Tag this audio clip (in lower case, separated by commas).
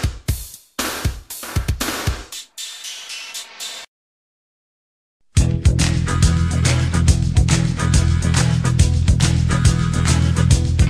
music, drum machine